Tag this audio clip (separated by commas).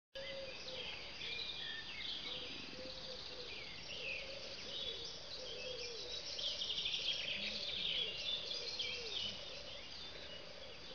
outside, rural or natural, Animal, Insect